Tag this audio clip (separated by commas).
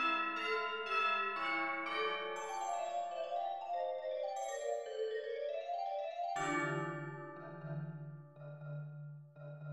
Music, Percussion, Marimba